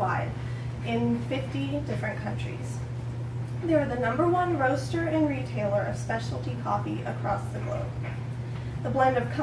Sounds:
woman speaking, speech

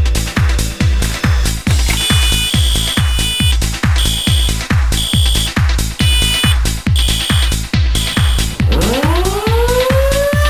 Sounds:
music, drum and bass, fire alarm, techno, trance music, electronica

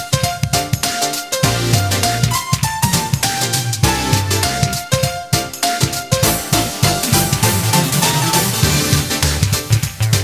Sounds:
music, dance music

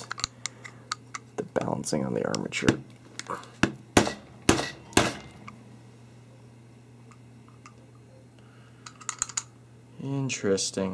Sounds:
speech

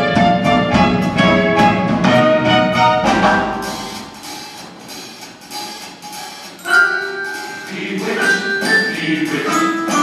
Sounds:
music

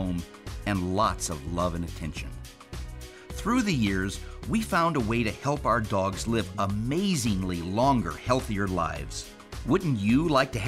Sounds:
music, speech

